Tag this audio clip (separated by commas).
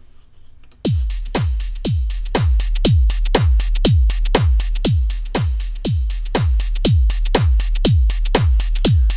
Musical instrument, Music